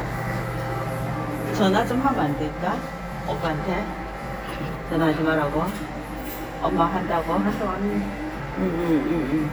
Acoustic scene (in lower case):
crowded indoor space